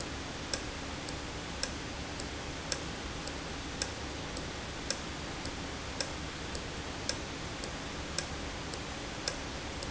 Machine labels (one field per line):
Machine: valve